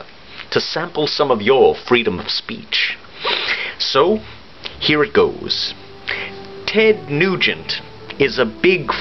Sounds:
music, speech, man speaking

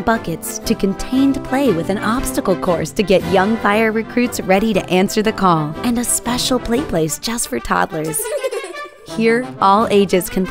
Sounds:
speech, music

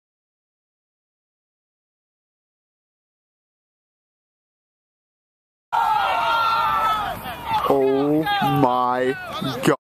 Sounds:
speech

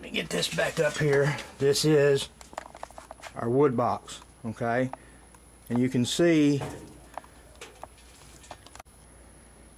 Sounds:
speech

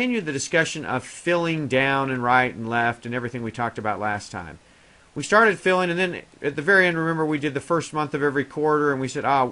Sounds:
speech

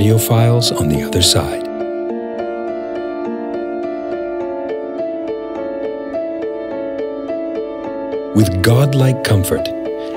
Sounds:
speech, music

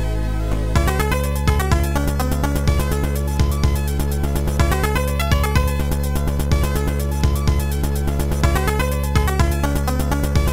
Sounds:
music, theme music

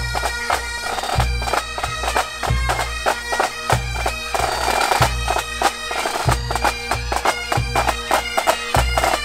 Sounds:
playing bagpipes

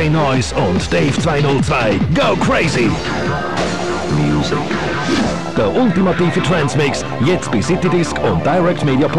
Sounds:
speech, music

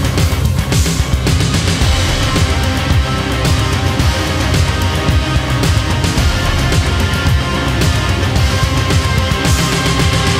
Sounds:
soundtrack music, music, theme music

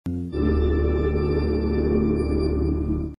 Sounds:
music, television

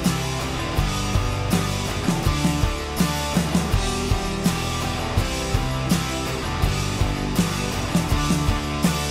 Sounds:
music

